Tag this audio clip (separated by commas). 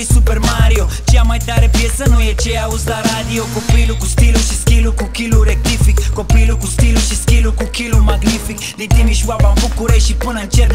Music